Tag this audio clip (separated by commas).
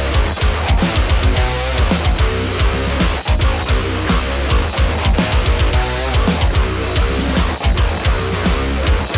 Music